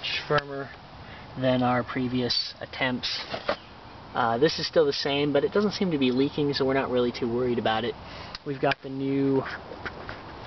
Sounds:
speech

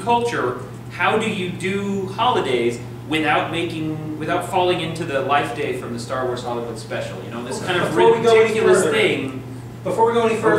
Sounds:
speech

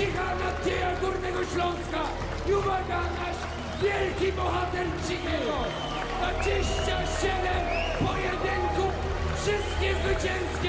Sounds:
speech

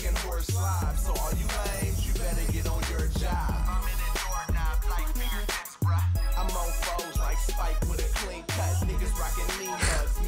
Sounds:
music

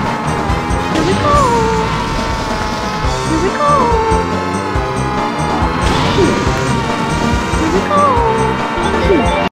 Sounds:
speech
music

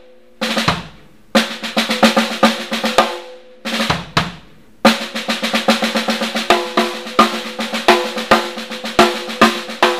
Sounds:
music

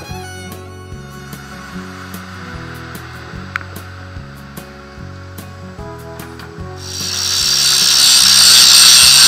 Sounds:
tools
power tool

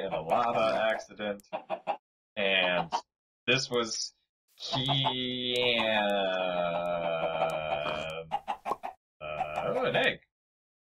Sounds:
speech

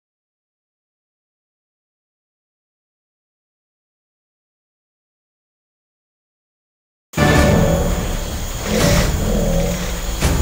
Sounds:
music

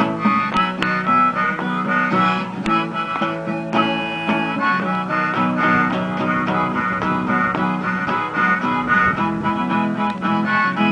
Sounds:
funny music
music

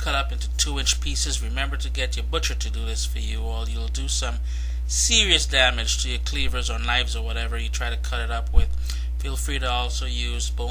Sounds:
speech

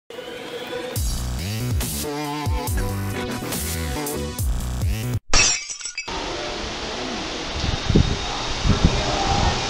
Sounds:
outside, rural or natural
breaking
music

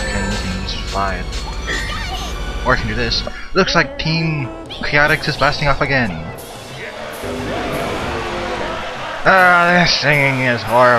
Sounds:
speech
music

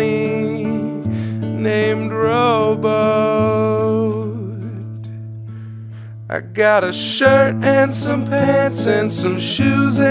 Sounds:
music

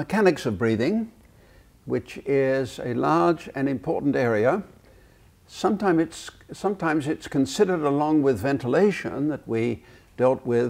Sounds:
speech

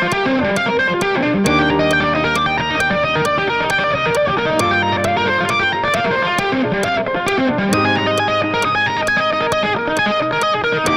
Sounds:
tapping guitar

